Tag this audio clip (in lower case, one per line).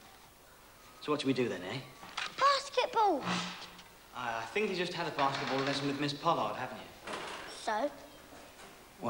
speech